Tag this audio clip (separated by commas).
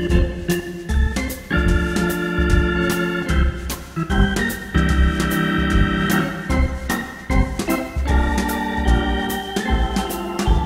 playing hammond organ